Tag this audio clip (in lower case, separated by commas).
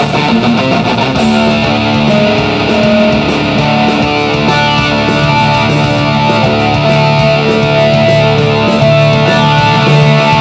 plucked string instrument, music, musical instrument, electric guitar, guitar